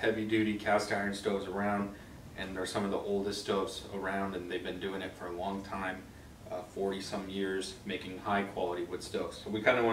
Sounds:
Speech

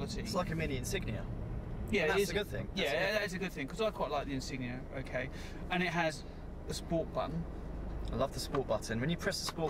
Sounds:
Vehicle, Car, Speech

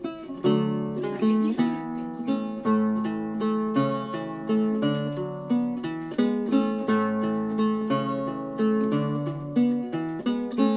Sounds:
Mandolin, playing acoustic guitar, Acoustic guitar

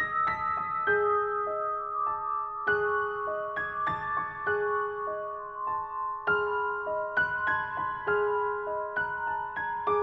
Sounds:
Music

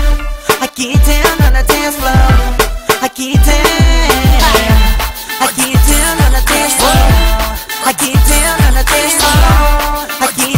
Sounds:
Dance music, Music

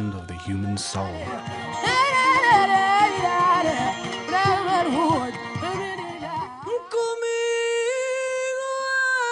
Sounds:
Speech, Music

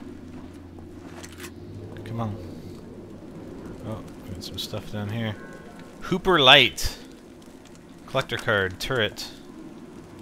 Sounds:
Speech

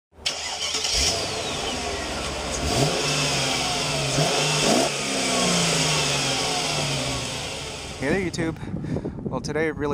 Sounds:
outside, urban or man-made, Vehicle, Car, Speech

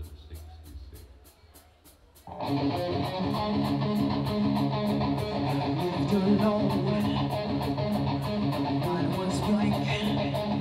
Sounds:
Rock and roll, Music

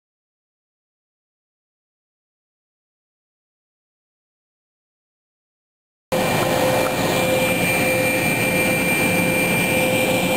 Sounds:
Railroad car, Train, outside, urban or man-made, Vehicle

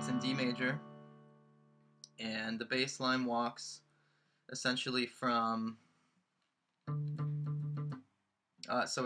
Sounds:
Plucked string instrument, Guitar, Strum, Music, Musical instrument, Speech

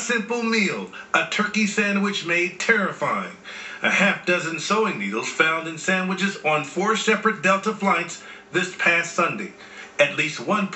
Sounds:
Speech

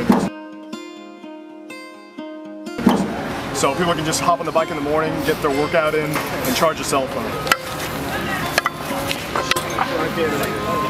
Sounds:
Speech, Music

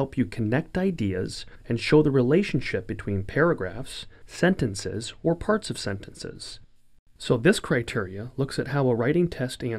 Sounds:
Speech

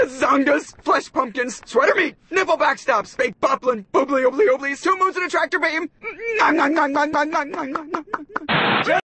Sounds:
Speech

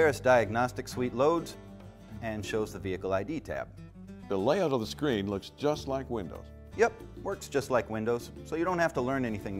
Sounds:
Music, Speech

